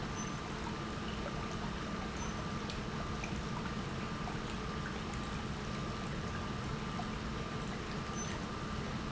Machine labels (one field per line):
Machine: pump